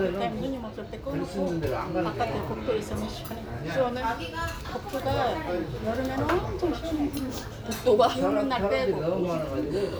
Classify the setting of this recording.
restaurant